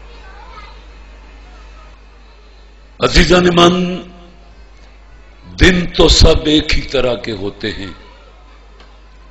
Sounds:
speech
man speaking

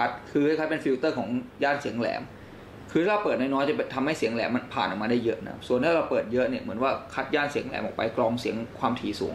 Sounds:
speech

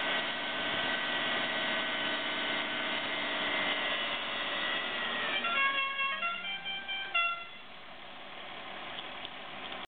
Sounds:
inside a large room or hall
honking

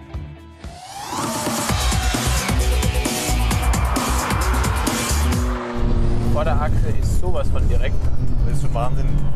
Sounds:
vehicle
music
car
speech

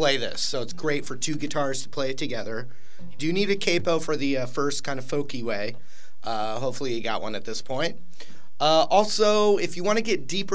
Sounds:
speech

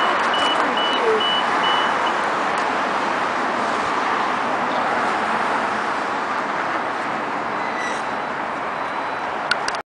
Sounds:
vehicle
car

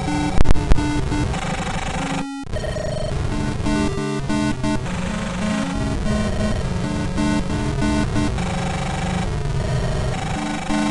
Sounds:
music

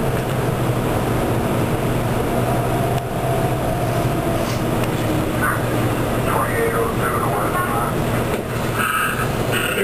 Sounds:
vehicle
speech

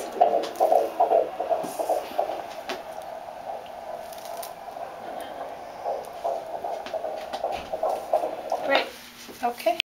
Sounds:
speech

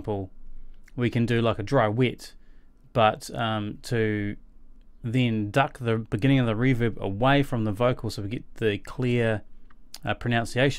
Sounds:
speech

